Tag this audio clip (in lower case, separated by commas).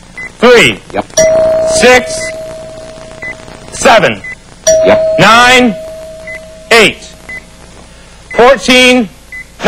speech